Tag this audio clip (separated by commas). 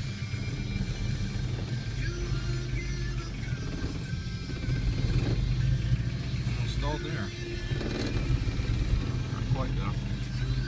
Vehicle, Speech, Car, Music